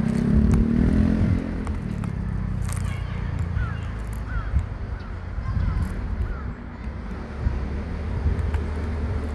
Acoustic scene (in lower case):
residential area